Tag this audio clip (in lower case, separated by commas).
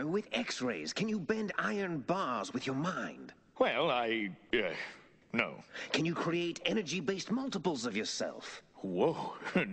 speech